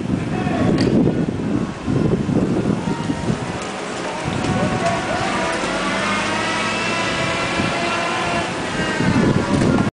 Man is shouting while cars are roaring, and speeding while triumphed music plays in the background